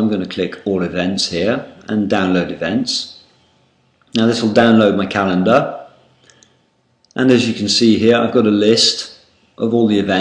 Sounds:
Speech

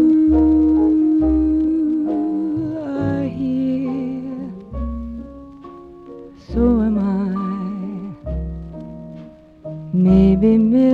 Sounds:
Keyboard (musical)

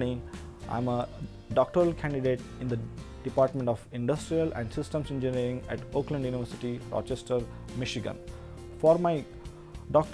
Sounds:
Speech, Music

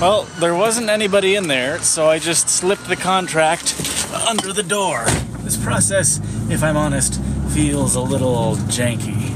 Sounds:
Speech, outside, urban or man-made

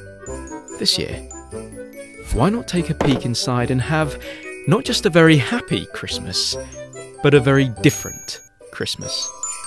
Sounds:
Speech, Music

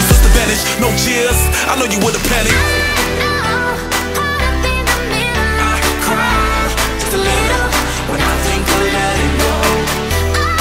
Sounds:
Music, Pop music, Exciting music

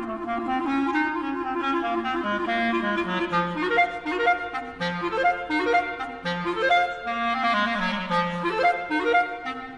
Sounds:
playing clarinet

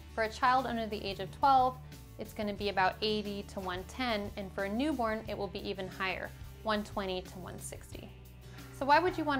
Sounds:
Speech, Music

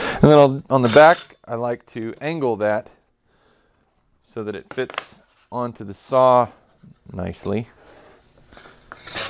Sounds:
Speech

